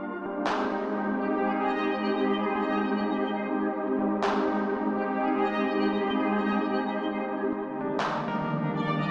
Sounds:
Music

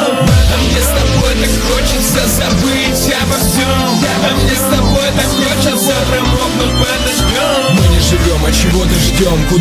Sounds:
Music

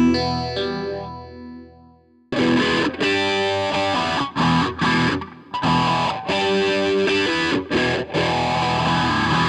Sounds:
Effects unit, Distortion, Plucked string instrument, Electric guitar, Music, Musical instrument

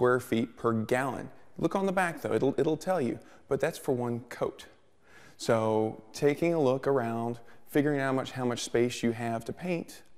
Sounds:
Speech

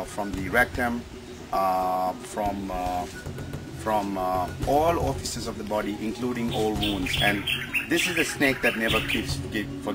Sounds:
Animal, outside, rural or natural, Speech

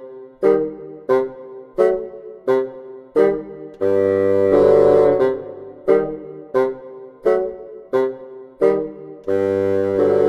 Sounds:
playing bassoon

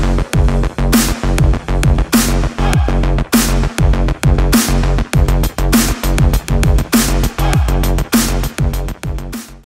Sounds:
Techno, Trance music

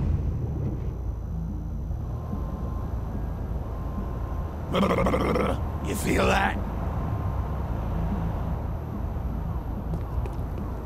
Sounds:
Speech, Music

